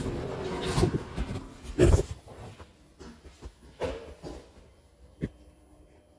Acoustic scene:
elevator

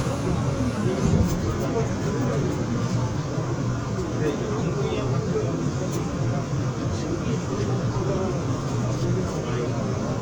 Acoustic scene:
subway train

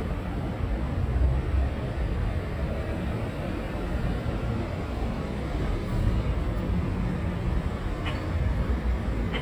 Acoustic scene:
residential area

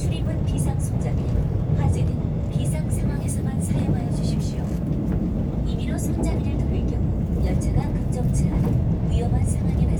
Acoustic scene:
subway train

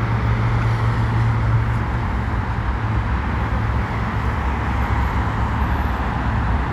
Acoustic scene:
street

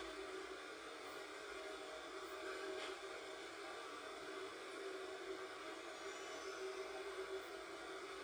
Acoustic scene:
subway train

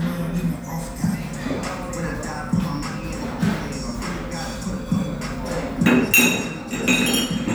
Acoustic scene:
restaurant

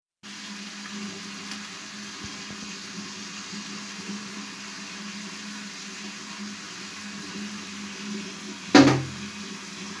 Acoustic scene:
restroom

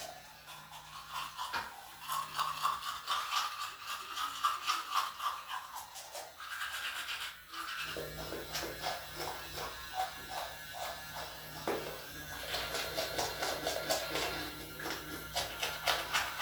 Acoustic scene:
restroom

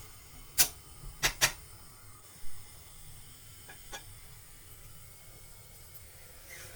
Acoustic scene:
kitchen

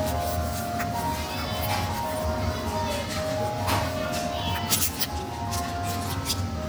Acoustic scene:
cafe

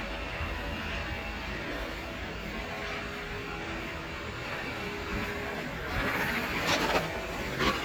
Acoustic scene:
residential area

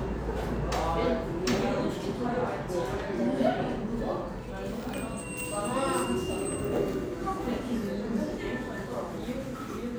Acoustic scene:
cafe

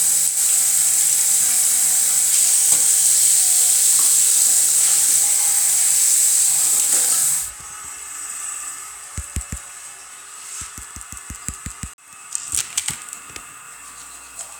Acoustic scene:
restroom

